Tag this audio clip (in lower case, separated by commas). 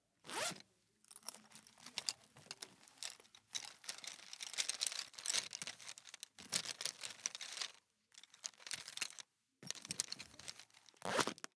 zipper (clothing), home sounds